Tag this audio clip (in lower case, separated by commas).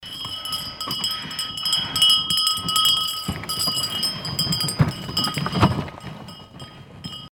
bell